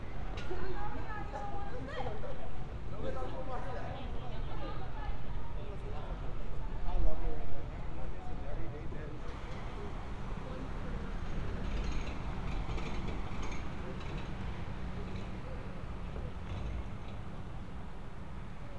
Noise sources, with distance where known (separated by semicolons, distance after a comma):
person or small group talking, far